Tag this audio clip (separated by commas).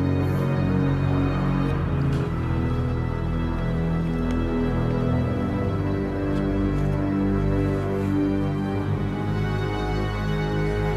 Music